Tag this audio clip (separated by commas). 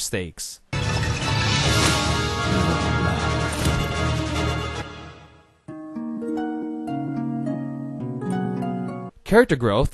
Speech, Music, Harp